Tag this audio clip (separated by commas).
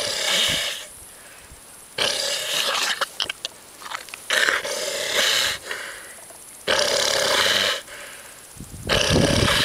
Pig, Animal